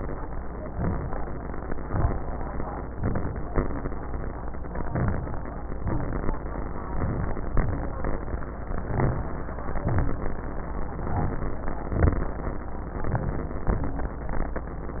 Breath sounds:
0.70-1.25 s: inhalation
1.86-2.41 s: exhalation
2.96-3.51 s: inhalation
4.84-5.39 s: inhalation
5.79-6.34 s: exhalation
6.91-7.46 s: inhalation
7.59-8.14 s: exhalation
8.86-9.41 s: inhalation
9.83-10.38 s: exhalation
11.01-11.56 s: inhalation
11.84-12.39 s: exhalation
13.07-13.62 s: inhalation
13.68-14.23 s: exhalation

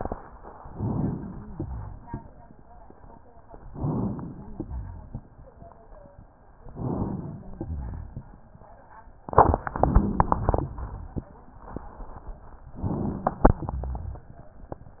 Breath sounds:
0.67-1.46 s: inhalation
1.29-2.09 s: wheeze
3.72-4.52 s: inhalation
3.74-4.16 s: wheeze
4.29-5.22 s: wheeze
6.68-7.51 s: inhalation
7.51-8.35 s: rhonchi
12.75-13.59 s: inhalation
12.94-13.53 s: wheeze
13.64-14.23 s: rhonchi

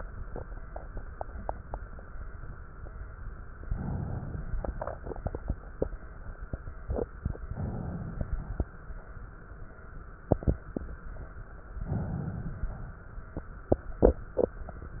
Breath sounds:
3.58-4.54 s: inhalation
7.41-8.15 s: inhalation
8.15-9.09 s: exhalation
8.15-9.09 s: crackles
11.69-12.65 s: inhalation
12.64-13.68 s: exhalation
12.64-13.68 s: crackles

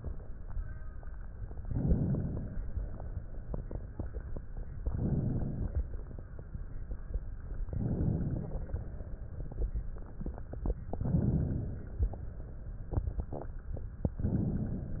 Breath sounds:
1.58-2.62 s: inhalation
2.62-3.89 s: exhalation
4.77-5.90 s: inhalation
7.64-8.77 s: inhalation
8.74-10.17 s: exhalation
10.83-12.03 s: inhalation
12.02-13.32 s: exhalation

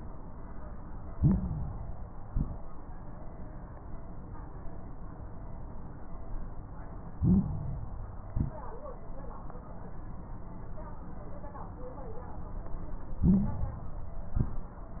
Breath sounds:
1.06-1.71 s: stridor
1.06-2.22 s: inhalation
2.24-2.71 s: exhalation
2.24-2.71 s: crackles
7.12-7.98 s: inhalation
7.12-7.98 s: stridor
8.27-8.68 s: exhalation
8.27-8.68 s: crackles
13.19-13.78 s: stridor
13.19-14.29 s: inhalation
14.31-14.76 s: exhalation
14.31-14.76 s: crackles

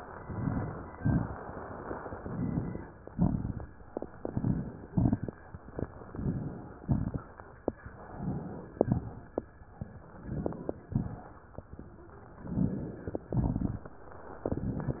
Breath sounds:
0.15-0.88 s: inhalation
0.15-0.88 s: crackles
0.91-1.43 s: exhalation
0.91-1.43 s: crackles
2.12-2.85 s: inhalation
2.12-2.85 s: crackles
3.07-3.76 s: exhalation
3.07-3.76 s: crackles
4.17-4.86 s: inhalation
4.20-4.82 s: crackles
4.86-5.41 s: exhalation
4.86-5.41 s: crackles
6.13-6.75 s: inhalation
6.13-6.75 s: crackles
6.79-7.30 s: exhalation
6.79-7.30 s: crackles
8.03-8.78 s: inhalation
8.03-8.78 s: crackles
8.86-9.62 s: exhalation
8.86-9.62 s: crackles
10.11-10.87 s: inhalation
10.11-10.87 s: crackles
10.91-11.29 s: exhalation
10.91-11.29 s: crackles
12.33-13.24 s: inhalation
12.33-13.24 s: crackles
13.40-13.98 s: exhalation
13.40-13.98 s: crackles
14.50-15.00 s: inhalation
14.50-15.00 s: crackles

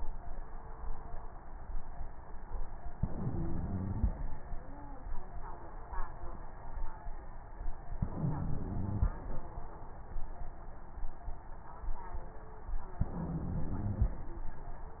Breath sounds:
2.94-4.08 s: inhalation
2.94-4.08 s: crackles
7.98-9.12 s: inhalation
7.98-9.12 s: crackles
13.04-14.17 s: inhalation
13.04-14.17 s: crackles

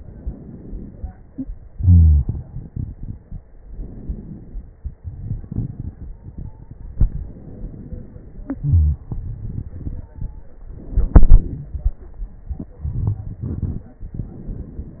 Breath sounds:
0.00-1.63 s: inhalation
1.72-2.27 s: wheeze
1.72-3.39 s: exhalation
3.65-4.72 s: inhalation
4.77-6.79 s: exhalation
4.77-6.79 s: crackles
6.01-6.92 s: stridor
6.94-8.46 s: inhalation
8.44-10.59 s: exhalation
9.89-10.57 s: stridor
10.68-11.93 s: inhalation
12.49-13.99 s: exhalation
12.86-13.45 s: wheeze
14.04-15.00 s: inhalation
14.04-15.00 s: crackles

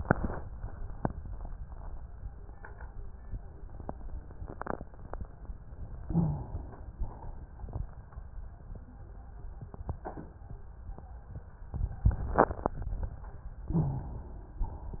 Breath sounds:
6.05-6.91 s: inhalation
6.07-6.49 s: rhonchi
6.91-7.70 s: exhalation
13.72-14.13 s: rhonchi
13.72-14.57 s: inhalation
14.57-15.00 s: exhalation

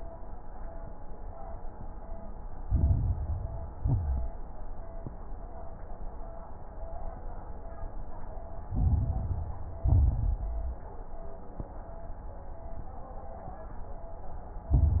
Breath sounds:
2.62-3.76 s: inhalation
2.62-3.76 s: crackles
3.80-4.39 s: exhalation
3.80-4.39 s: crackles
8.68-9.82 s: inhalation
8.68-9.82 s: crackles
9.84-10.85 s: exhalation
9.84-10.85 s: crackles
14.74-15.00 s: inhalation
14.74-15.00 s: crackles

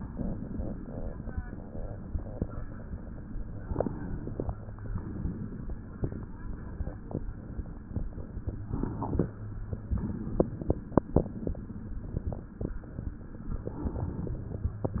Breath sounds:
3.17-4.75 s: inhalation
4.75-5.91 s: exhalation
8.24-9.75 s: inhalation
9.78-11.25 s: exhalation
13.37-14.84 s: inhalation

